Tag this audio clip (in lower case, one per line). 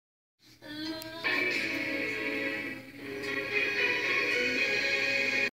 music
television